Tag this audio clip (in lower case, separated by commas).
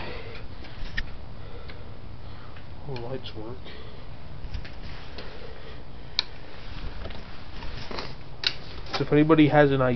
speech